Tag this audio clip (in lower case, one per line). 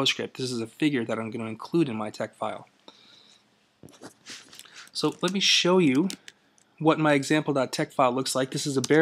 speech